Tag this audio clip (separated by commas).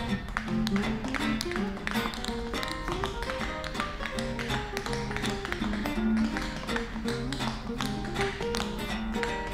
tap dancing